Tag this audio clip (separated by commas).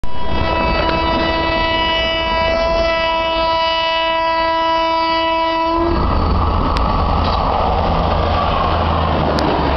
Rail transport, Vehicle, Train, Railroad car